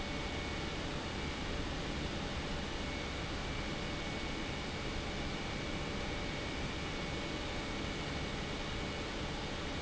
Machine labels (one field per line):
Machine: pump